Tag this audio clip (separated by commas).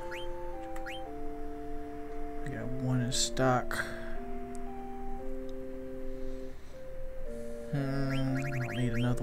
Music, Speech